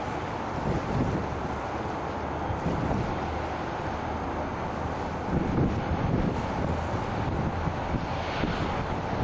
Light continuous wind and engine running quietly